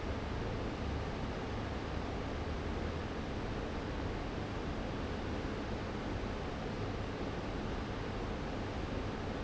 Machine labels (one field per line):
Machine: fan